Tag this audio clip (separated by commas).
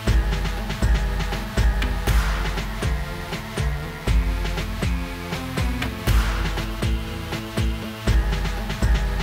Music